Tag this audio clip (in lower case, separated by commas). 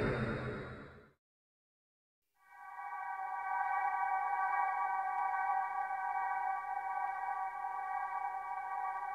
sonar, music